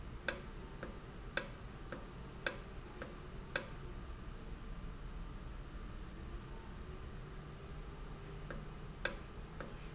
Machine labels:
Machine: valve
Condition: normal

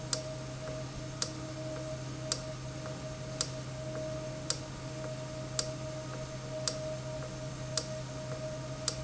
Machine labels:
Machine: valve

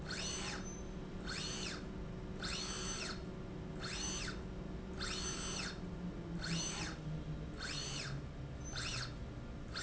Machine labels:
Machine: slide rail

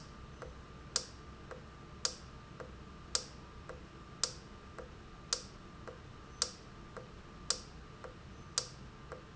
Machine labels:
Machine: valve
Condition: normal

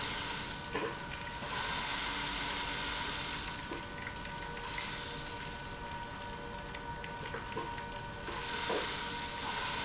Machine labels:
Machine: pump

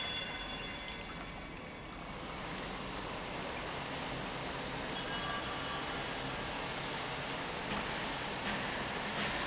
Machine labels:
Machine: pump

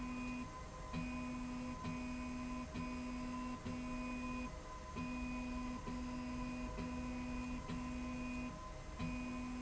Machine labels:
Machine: slide rail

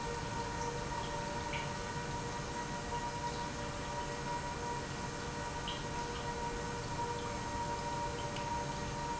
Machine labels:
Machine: pump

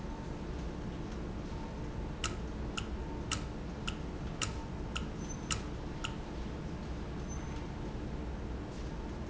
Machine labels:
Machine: valve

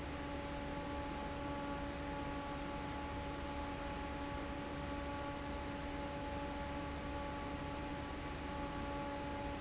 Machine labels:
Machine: fan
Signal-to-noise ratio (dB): 0 dB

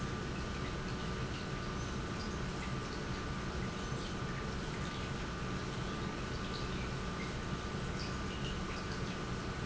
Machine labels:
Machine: pump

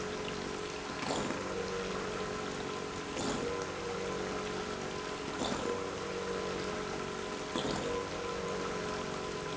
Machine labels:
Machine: pump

